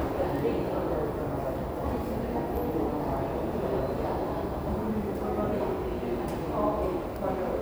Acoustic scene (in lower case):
subway station